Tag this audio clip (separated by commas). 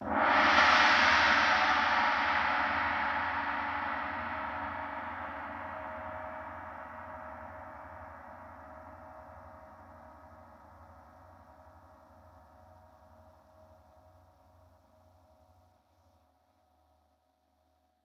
Music, Musical instrument, Percussion, Gong